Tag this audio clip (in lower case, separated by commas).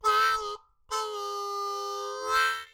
music, harmonica, musical instrument